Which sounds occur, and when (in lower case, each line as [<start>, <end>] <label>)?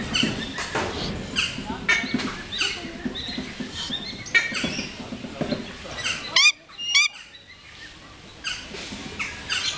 [0.00, 0.92] generic impact sounds
[0.00, 9.75] background noise
[0.06, 2.94] bird call
[1.55, 3.52] speech noise
[1.56, 2.38] generic impact sounds
[2.67, 5.66] generic impact sounds
[3.10, 4.90] bird call
[5.27, 7.29] speech noise
[5.36, 6.54] bird call
[6.69, 9.75] bird call
[8.57, 9.75] speech noise